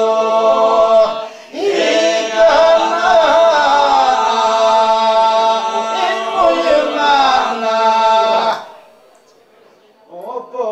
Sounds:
Male singing

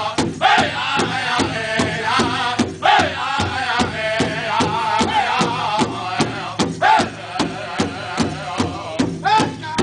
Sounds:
Music

